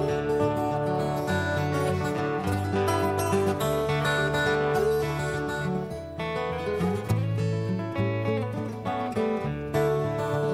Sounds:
Music

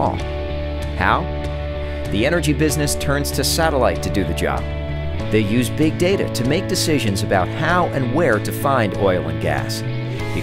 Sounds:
Speech, Music

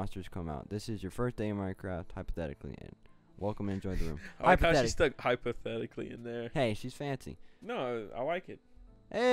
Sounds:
Speech

